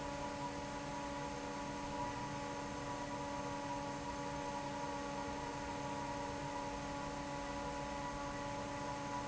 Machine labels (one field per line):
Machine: fan